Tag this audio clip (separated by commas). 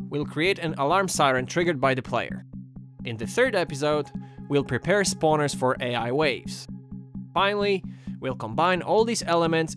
Music, Speech